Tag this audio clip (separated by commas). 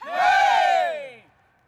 Human group actions, Cheering